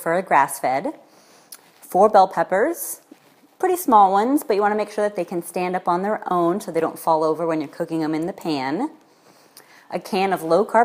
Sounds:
speech

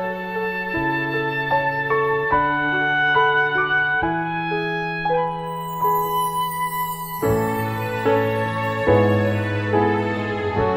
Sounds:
soundtrack music, tender music, music

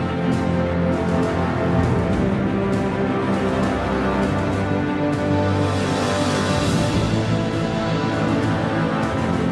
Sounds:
music

